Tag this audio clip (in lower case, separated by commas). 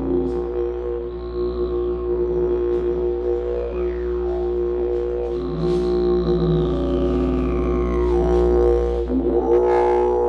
playing didgeridoo